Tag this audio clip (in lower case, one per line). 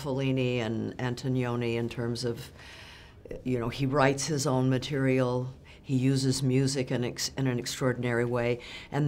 speech